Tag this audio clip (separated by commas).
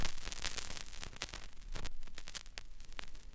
Crackle